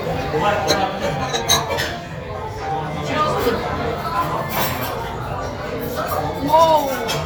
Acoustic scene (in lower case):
restaurant